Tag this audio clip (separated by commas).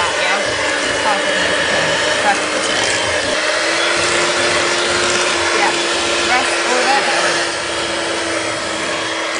Blender